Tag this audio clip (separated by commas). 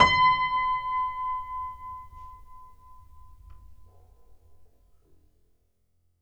Music, Keyboard (musical), Piano, Musical instrument